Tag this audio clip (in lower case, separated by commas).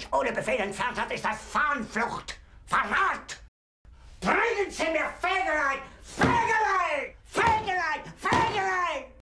speech